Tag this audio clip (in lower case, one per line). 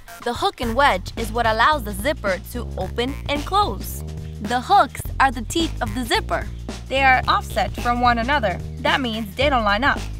speech
music